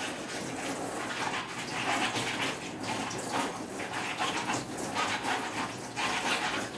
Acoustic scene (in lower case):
kitchen